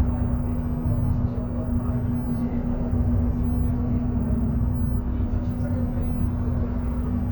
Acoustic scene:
bus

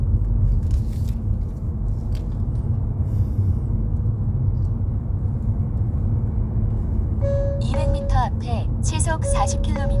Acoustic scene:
car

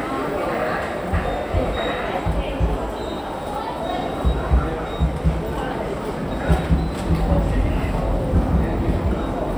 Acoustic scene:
subway station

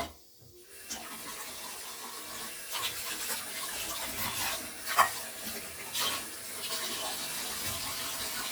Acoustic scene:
kitchen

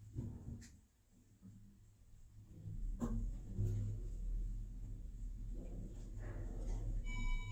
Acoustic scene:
elevator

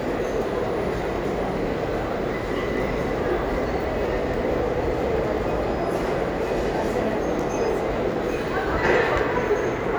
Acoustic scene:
restaurant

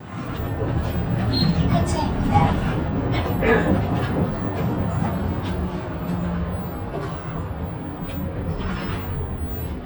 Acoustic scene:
bus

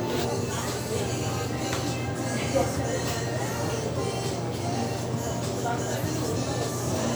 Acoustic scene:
restaurant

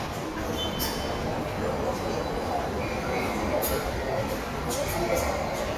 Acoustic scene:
subway station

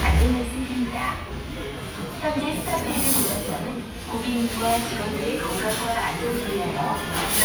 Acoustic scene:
restaurant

